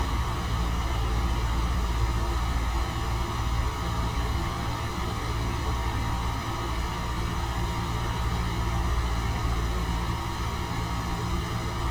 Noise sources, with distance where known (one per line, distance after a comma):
engine of unclear size